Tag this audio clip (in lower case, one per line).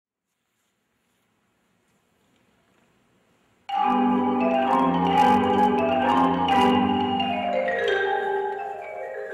mallet percussion
xylophone
glockenspiel